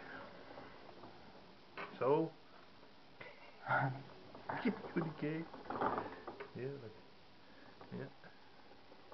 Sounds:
speech

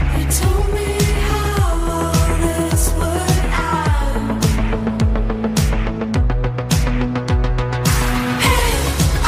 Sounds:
music

